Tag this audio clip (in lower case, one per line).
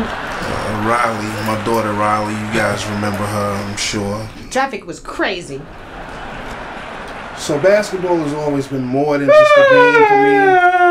speech
man speaking
female speech